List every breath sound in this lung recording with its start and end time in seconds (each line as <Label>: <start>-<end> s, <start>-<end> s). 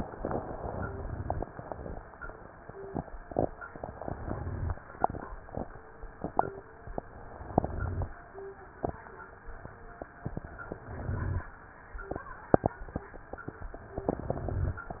Inhalation: 4.06-4.80 s, 7.46-8.20 s, 10.76-11.50 s
Crackles: 4.06-4.80 s, 7.46-8.20 s, 10.76-11.50 s